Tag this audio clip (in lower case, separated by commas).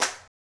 clapping, hands